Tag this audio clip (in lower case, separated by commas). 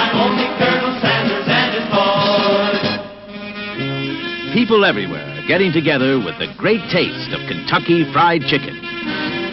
speech, music